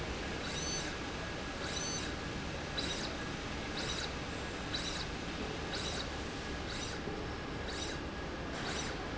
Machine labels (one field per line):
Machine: slide rail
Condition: abnormal